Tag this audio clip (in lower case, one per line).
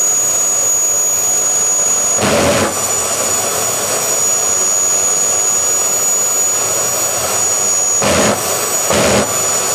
jet engine
aircraft